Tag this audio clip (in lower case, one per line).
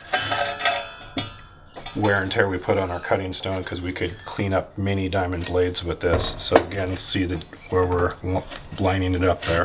speech